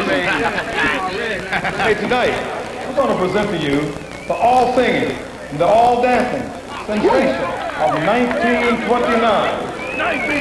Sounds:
Speech

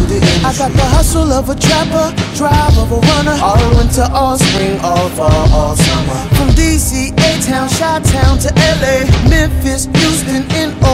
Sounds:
Music

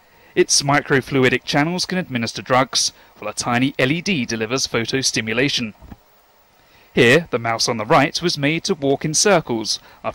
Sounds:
Speech

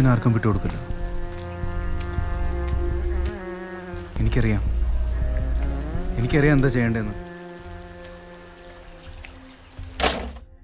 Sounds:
Raindrop

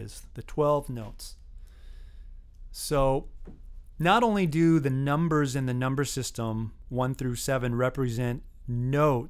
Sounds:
Speech

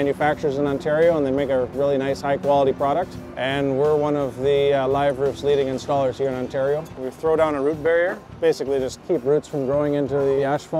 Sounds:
Music, Speech

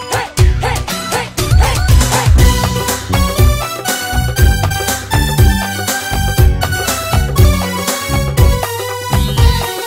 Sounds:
Music

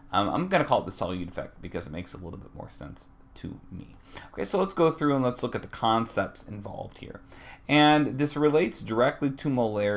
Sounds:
Speech

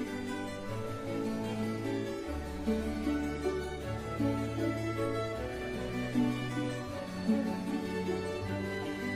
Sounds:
Harpsichord

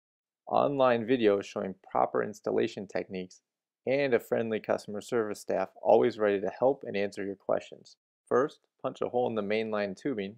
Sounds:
Speech

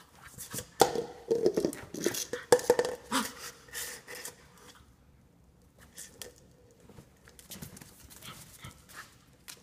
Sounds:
Domestic animals, Animal, Dog

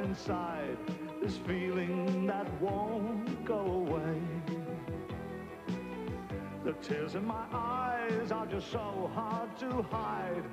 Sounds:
Music, Male singing

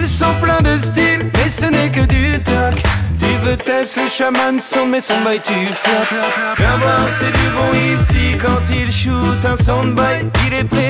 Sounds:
Sound effect, Music

